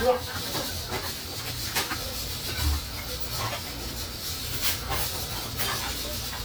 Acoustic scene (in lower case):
restaurant